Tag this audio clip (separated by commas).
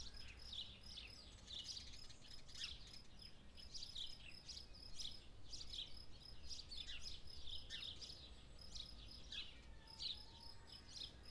Wild animals, Cricket, Insect, Animal